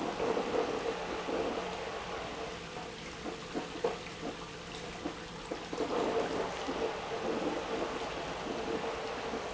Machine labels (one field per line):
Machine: pump